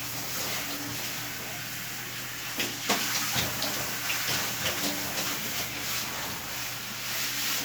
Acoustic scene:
restroom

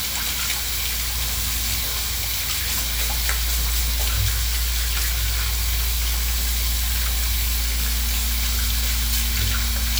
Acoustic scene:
restroom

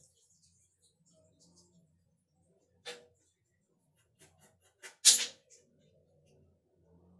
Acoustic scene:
restroom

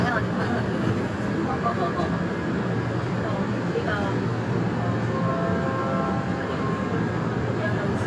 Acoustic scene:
subway train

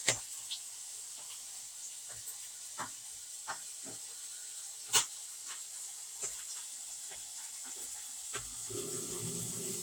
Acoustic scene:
kitchen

